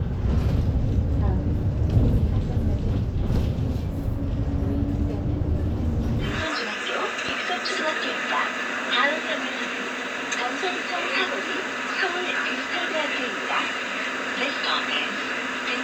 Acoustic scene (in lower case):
bus